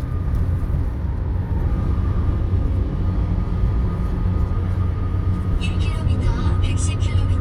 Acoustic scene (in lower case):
car